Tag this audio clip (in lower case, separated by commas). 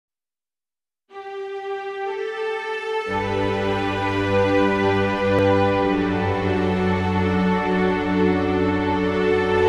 music, theme music, new-age music, background music